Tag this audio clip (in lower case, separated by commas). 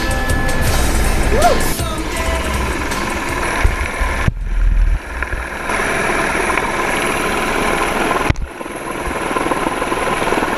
vehicle, music, helicopter